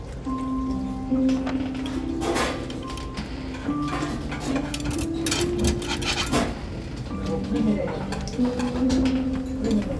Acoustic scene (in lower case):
restaurant